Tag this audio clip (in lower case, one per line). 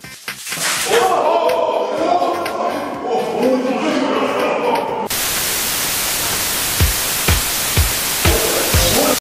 speech
music